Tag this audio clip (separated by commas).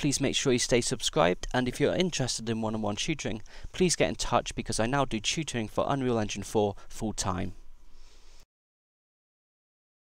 Silence, Speech